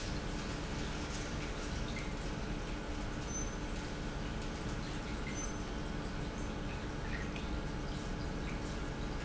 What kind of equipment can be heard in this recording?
pump